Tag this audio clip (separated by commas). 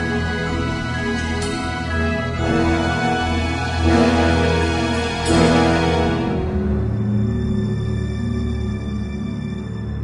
Music, Soundtrack music